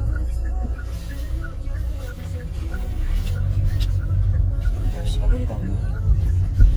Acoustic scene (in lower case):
car